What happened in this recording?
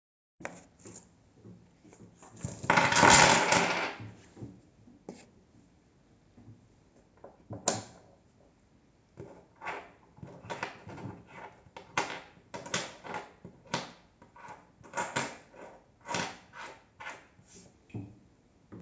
I emptied the coins from my wallet onto my desk, turned on my desk lamp and counted the coins.